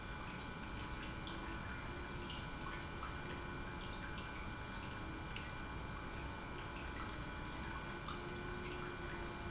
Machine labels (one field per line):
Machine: pump